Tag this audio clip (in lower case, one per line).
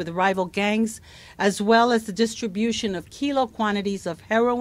speech